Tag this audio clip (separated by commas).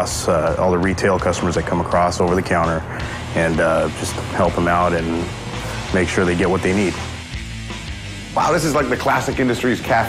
Speech, Music